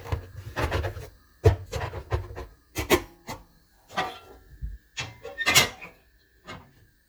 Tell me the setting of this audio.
kitchen